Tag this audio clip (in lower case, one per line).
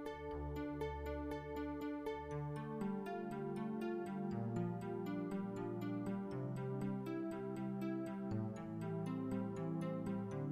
music